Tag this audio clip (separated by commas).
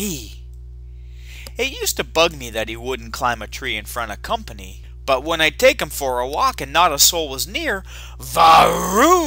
Speech